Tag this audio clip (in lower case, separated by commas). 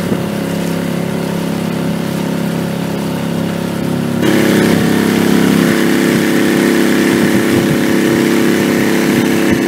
vehicle, water vehicle